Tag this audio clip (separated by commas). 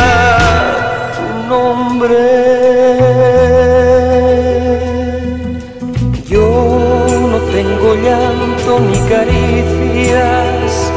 Music